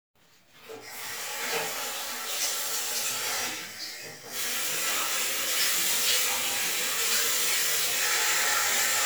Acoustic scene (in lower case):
restroom